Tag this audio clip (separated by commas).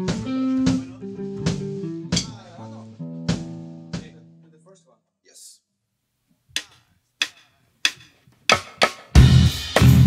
Speech, Music